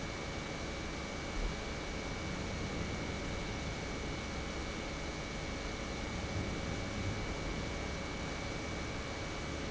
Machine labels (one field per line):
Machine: pump